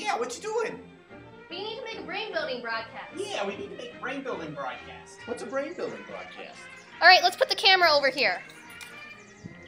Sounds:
speech
music

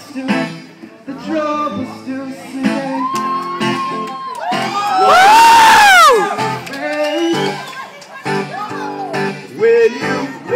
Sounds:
speech
male singing
music

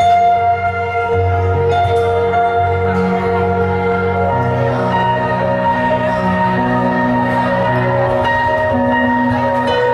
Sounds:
music

